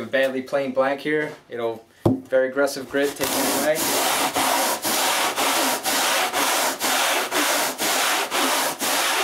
Male speaking while sanding wood